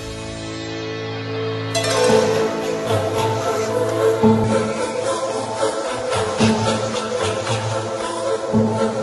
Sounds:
Soundtrack music, Music

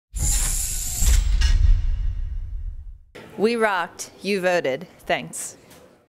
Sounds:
Female speech, Speech

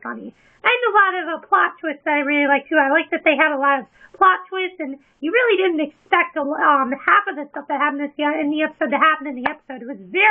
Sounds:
Speech

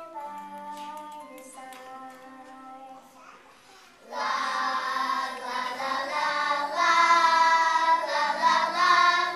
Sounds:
kid speaking, Music

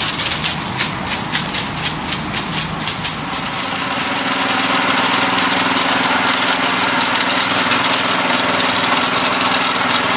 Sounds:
Water

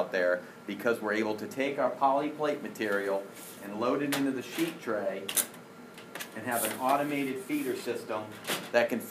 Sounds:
Speech

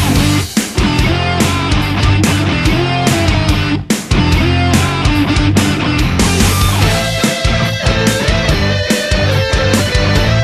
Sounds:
Music, Progressive rock

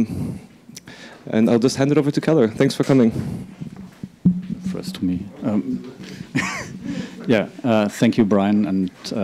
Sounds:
Conversation, Speech

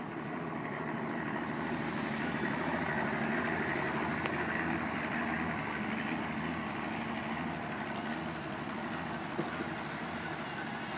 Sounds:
speedboat acceleration, Water vehicle, Motorboat

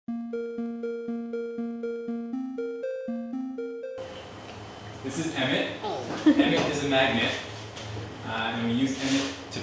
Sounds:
Speech, Music

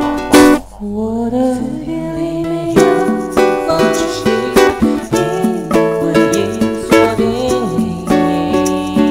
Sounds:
inside a small room, Music

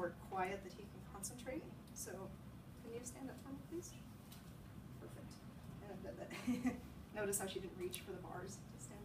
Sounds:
Speech

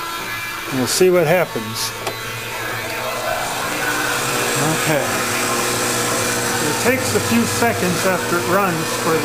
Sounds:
Tools, Power tool

